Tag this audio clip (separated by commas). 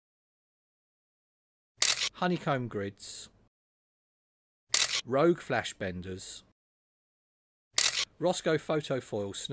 Single-lens reflex camera, Speech